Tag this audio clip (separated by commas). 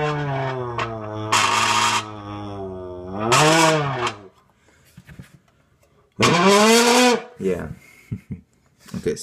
Speech